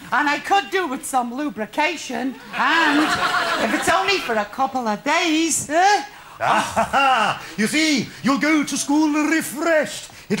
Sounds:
Speech

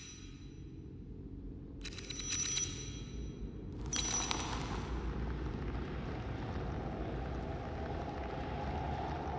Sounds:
Music

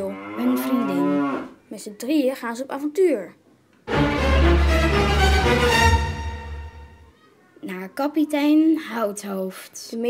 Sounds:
Speech, Music

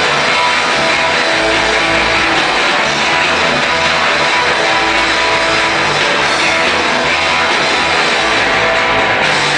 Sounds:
Music

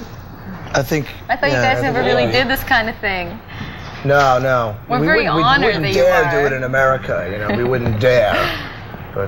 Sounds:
Speech

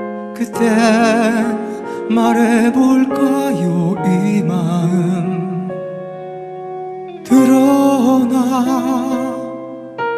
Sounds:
Music, Singing

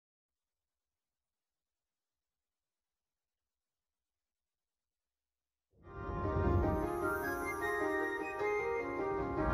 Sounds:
Music

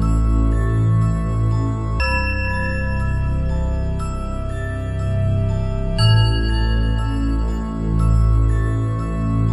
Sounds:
Soundtrack music, Music

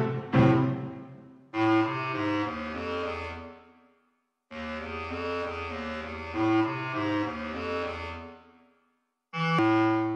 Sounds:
Music, woodwind instrument

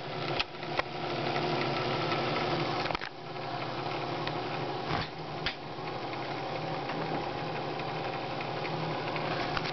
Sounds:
Mechanisms, Gears, pawl

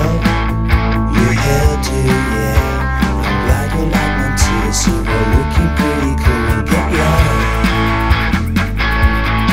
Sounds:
Drum, Electric guitar, Strum, Musical instrument, Music, Guitar, Plucked string instrument, Bass guitar, playing bass guitar

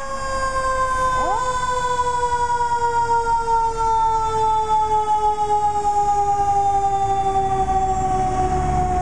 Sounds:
Fire engine, Emergency vehicle, Siren

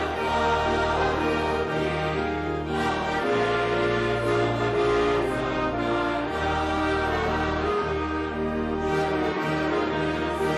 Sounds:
Choir, Music

